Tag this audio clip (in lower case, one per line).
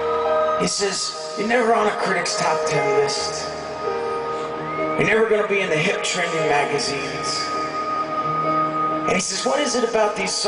speech
music